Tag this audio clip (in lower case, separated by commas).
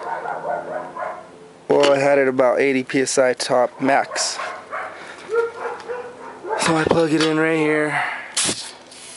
bow-wow